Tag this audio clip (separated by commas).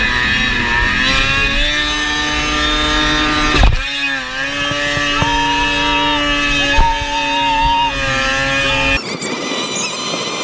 driving snowmobile